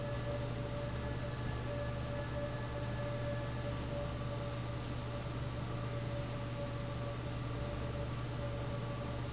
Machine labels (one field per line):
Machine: fan